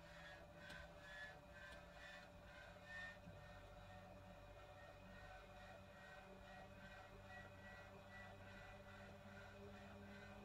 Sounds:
Vehicle, Aircraft

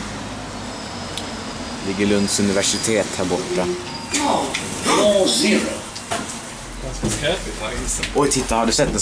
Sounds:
Speech

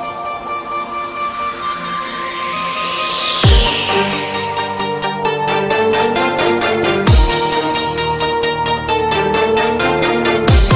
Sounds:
Music

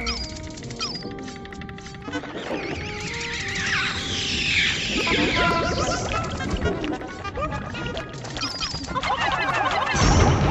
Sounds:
Music

